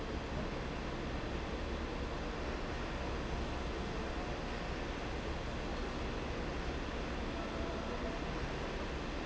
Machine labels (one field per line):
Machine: fan